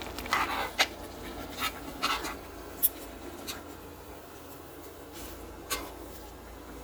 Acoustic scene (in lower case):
kitchen